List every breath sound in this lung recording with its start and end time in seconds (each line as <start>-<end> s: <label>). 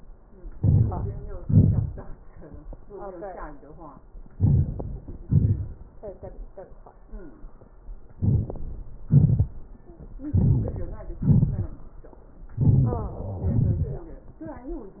0.51-1.02 s: inhalation
1.43-1.95 s: exhalation
4.34-4.86 s: inhalation
5.27-5.64 s: exhalation
8.22-8.61 s: inhalation
9.08-9.47 s: exhalation
10.37-10.79 s: inhalation
11.21-11.72 s: exhalation
12.57-13.02 s: inhalation
13.51-14.12 s: exhalation